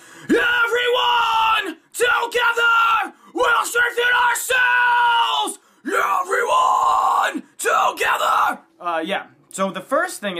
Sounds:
yell, speech

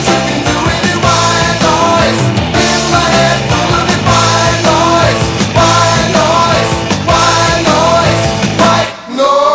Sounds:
music, country, grunge

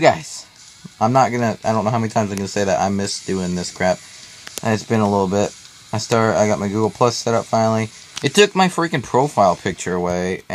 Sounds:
speech, music

